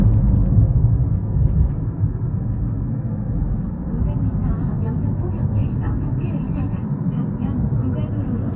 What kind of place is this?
car